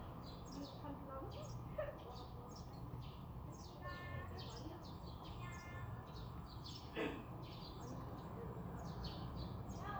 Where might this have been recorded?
in a residential area